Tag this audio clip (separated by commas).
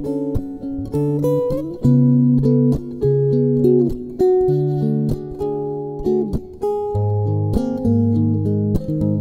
Plucked string instrument, Guitar, Musical instrument, Music